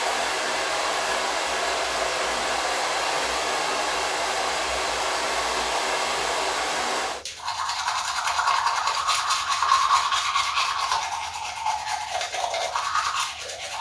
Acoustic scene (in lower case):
restroom